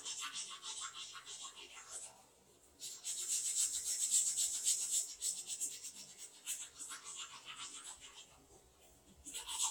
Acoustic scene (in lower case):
restroom